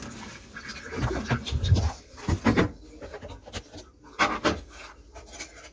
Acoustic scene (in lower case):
kitchen